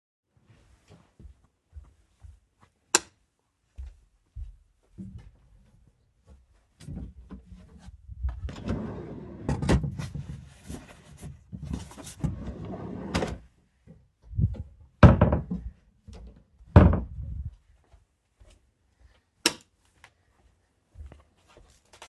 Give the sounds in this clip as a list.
footsteps, light switch, wardrobe or drawer